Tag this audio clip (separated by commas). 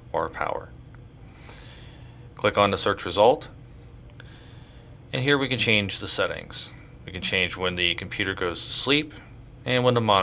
Speech